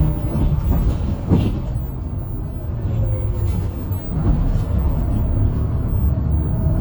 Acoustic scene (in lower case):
bus